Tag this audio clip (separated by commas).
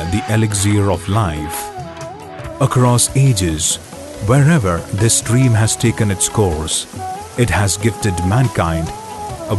Music, Speech